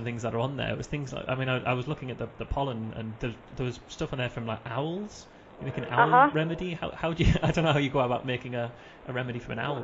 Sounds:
Speech

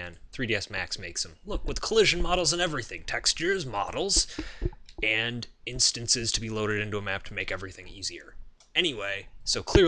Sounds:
Speech

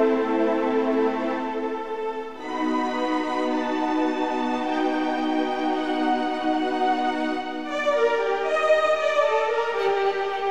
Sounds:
New-age music, Music

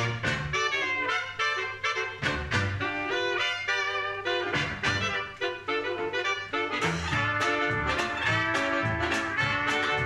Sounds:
Trumpet, playing saxophone, Brass instrument, Saxophone

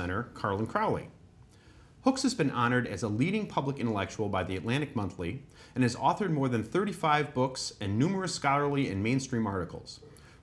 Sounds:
Speech

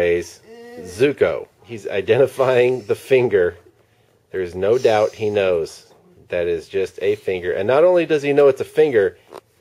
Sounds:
Speech

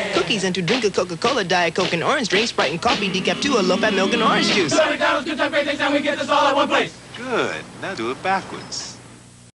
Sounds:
Speech

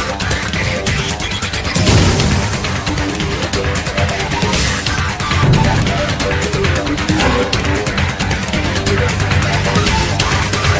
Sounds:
Soundtrack music, Music

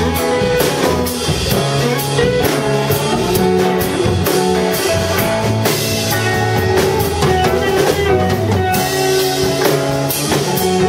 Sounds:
Music, Blues

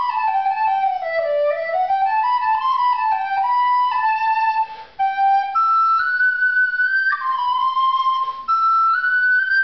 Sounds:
Music, inside a small room

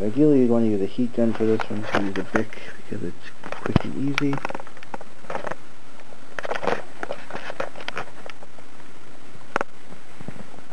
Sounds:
inside a small room, Speech

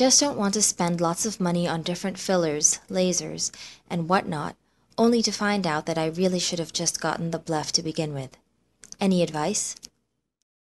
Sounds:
Narration

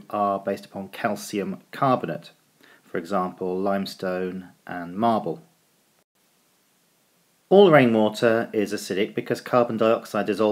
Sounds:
Speech

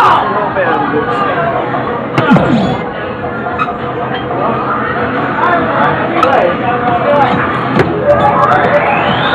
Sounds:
Speech

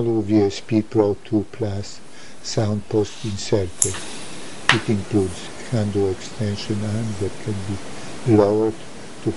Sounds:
Speech

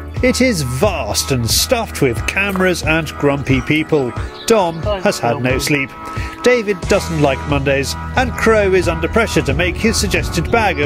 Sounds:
Speech, Bird, Music

